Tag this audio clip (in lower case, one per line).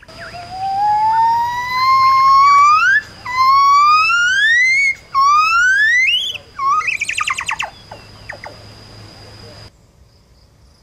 gibbon howling